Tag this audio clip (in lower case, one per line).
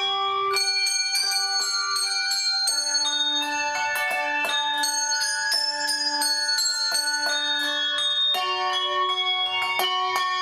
bell
musical instrument